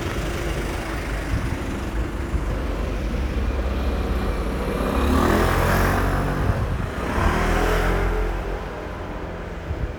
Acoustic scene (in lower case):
residential area